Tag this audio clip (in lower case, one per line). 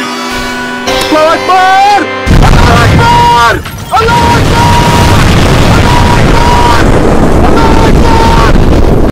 speech
music